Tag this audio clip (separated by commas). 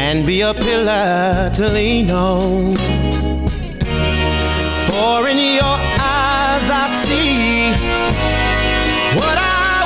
Singing